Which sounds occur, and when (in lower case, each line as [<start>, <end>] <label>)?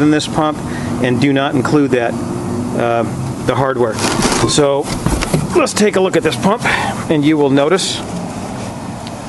[0.00, 0.58] male speech
[0.00, 9.25] mechanisms
[0.66, 0.97] breathing
[0.96, 2.10] male speech
[2.73, 3.05] male speech
[3.41, 3.94] male speech
[3.99, 4.68] generic impact sounds
[4.55, 4.82] male speech
[4.87, 5.48] generic impact sounds
[5.51, 6.63] male speech
[6.27, 6.41] tick
[6.63, 7.02] breathing
[7.09, 8.02] male speech
[8.10, 8.25] generic impact sounds
[9.03, 9.16] breathing